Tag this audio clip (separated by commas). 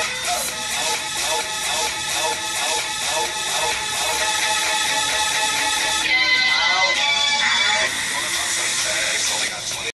Music